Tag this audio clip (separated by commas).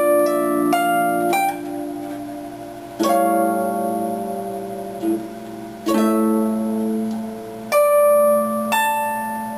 Music, Harp, Classical music, playing harp, Musical instrument